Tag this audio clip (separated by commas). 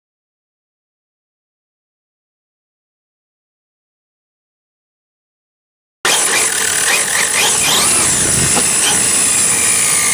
Car, Vehicle, outside, rural or natural, Silence